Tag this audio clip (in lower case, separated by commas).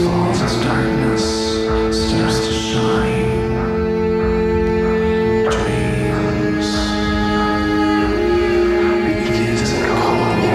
music, speech